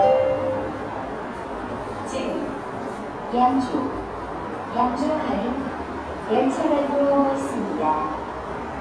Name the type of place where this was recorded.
subway station